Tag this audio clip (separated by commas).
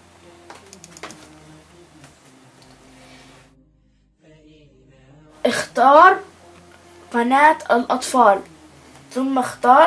Speech